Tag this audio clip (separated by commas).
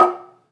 Percussion, Musical instrument, Music, Marimba, Mallet percussion